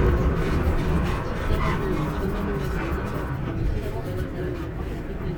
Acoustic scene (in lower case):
bus